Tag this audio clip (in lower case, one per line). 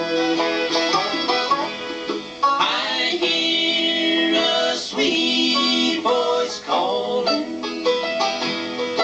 banjo
musical instrument
country
bluegrass
plucked string instrument
guitar
bowed string instrument
fiddle
music